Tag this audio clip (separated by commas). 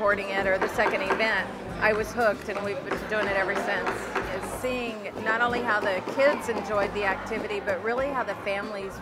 Music, Speech